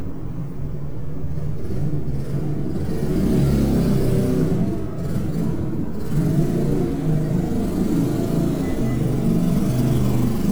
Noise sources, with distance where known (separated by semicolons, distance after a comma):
medium-sounding engine, near